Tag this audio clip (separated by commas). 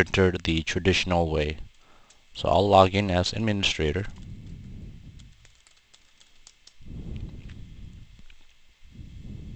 Speech